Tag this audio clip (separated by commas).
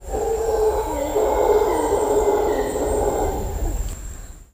Animal